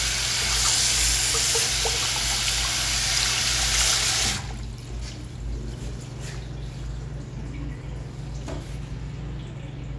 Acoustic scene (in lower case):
restroom